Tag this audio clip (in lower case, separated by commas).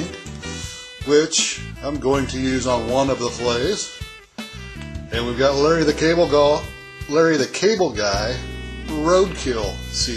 speech, music